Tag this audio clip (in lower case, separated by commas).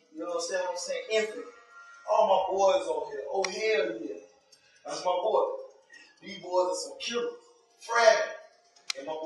speech